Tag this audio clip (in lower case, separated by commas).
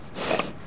animal, livestock